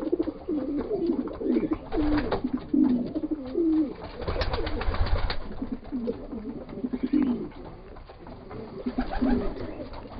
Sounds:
bird, animal, coo

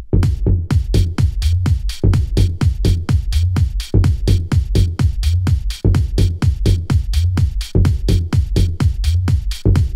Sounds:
music

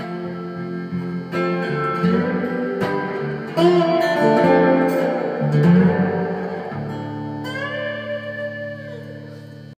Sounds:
music, strum, electric guitar, musical instrument, guitar, plucked string instrument

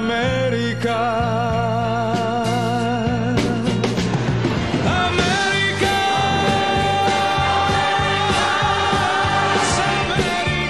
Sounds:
music

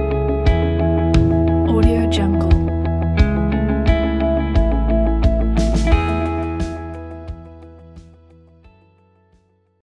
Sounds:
speech, music

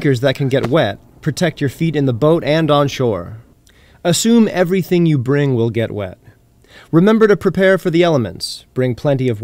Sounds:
speech

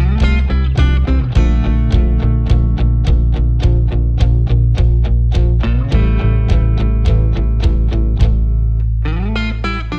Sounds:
music, bass guitar

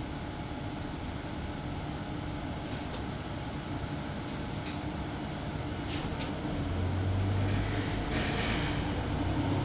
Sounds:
bus, driving buses, vehicle

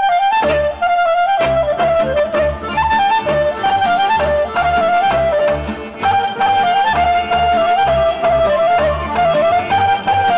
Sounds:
folk music, music

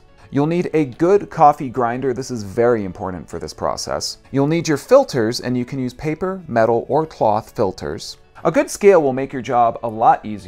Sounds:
music, speech

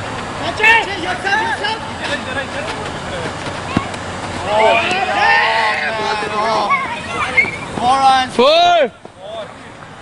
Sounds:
speech, run

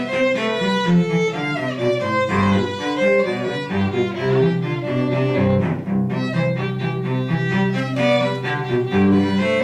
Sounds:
violin, music, musical instrument

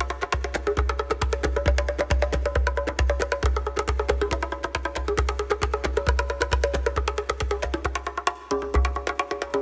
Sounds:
music

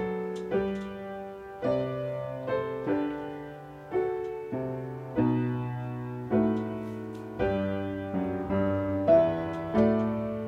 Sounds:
musical instrument, music

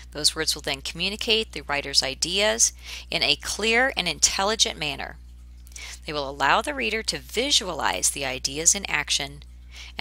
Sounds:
speech

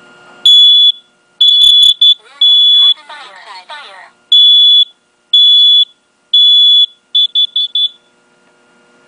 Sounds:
smoke detector

